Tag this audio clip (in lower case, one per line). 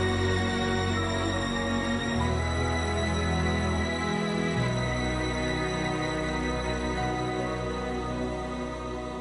child singing
music